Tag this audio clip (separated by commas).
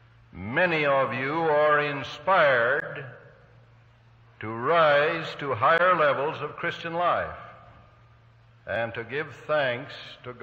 man speaking, monologue, Speech